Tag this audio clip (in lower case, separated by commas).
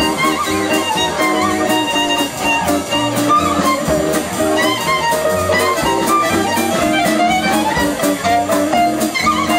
violin, music, musical instrument